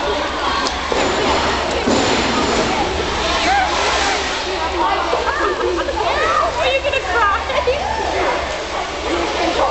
A group of people are talking and then an adult woman speaks in the forefront